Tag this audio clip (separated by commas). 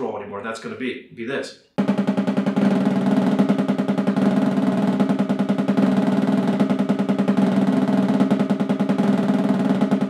Speech, Musical instrument, Music, Snare drum, Drum, Drum roll, playing snare drum